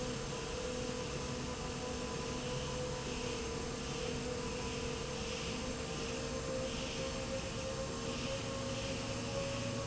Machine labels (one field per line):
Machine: slide rail